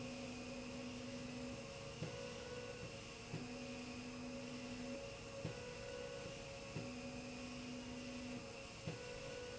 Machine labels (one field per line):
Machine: slide rail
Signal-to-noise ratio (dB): 6 dB